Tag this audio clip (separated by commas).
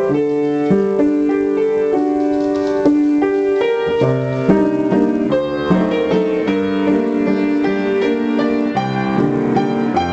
Music